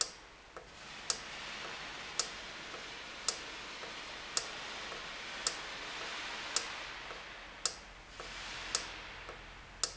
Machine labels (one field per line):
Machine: valve